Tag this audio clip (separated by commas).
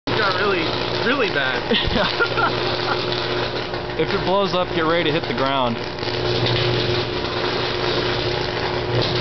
outside, urban or man-made, Speech